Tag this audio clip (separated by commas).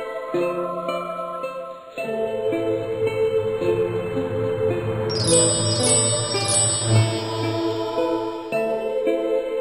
Music